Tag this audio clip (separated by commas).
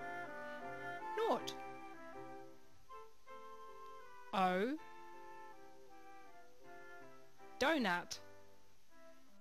Music, Speech